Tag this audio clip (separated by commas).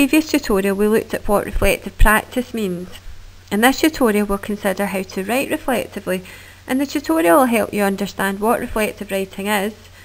Speech